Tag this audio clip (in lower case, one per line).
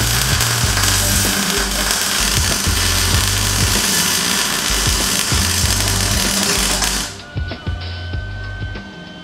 speech
inside a large room or hall
music